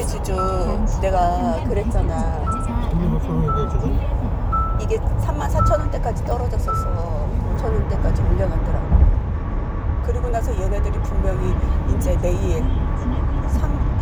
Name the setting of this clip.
car